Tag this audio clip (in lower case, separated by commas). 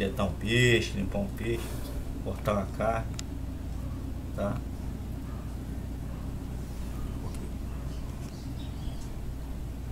sharpen knife